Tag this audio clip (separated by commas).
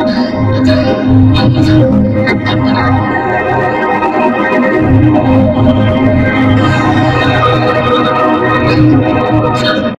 Music, Reverberation, Sound effect, Speech